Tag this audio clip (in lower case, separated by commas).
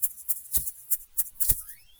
musical instrument, percussion, rattle (instrument), music